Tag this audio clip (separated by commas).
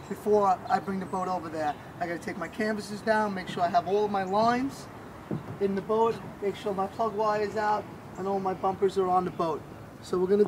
Speech